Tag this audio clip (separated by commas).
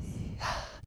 Respiratory sounds, Breathing